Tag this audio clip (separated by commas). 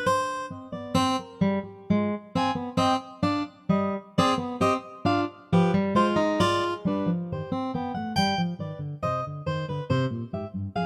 Music